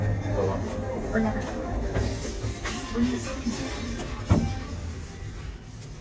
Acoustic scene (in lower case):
elevator